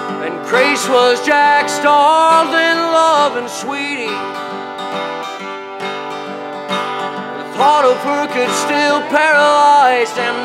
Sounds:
music

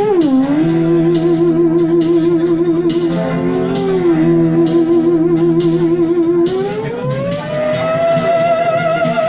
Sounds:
playing theremin

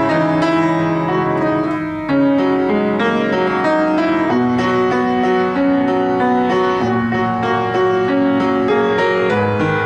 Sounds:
musical instrument, piano, keyboard (musical), music

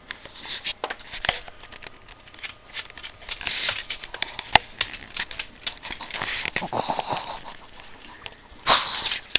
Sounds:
pets, animal, dog

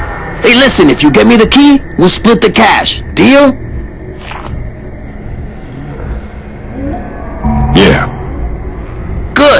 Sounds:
music, speech

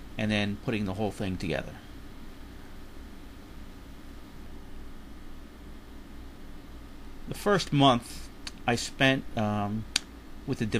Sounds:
speech

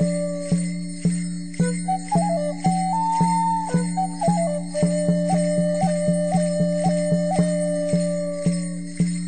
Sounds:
flute, music

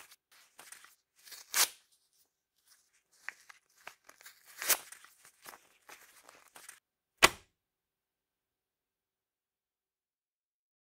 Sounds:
ripping paper

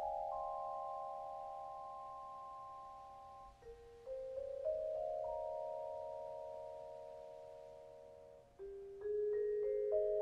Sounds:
musical instrument, vibraphone, music

